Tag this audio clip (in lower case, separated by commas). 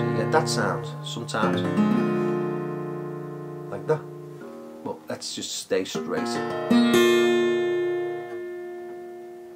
music, guitar, musical instrument, acoustic guitar, blues, plucked string instrument, speech